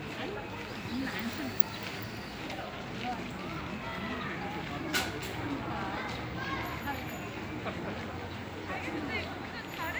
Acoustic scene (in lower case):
park